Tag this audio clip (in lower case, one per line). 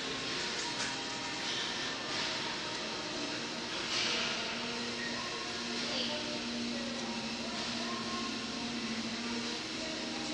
inside a large room or hall
music